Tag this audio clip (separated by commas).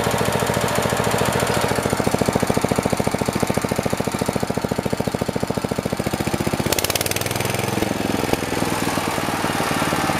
Medium engine (mid frequency), Engine, Idling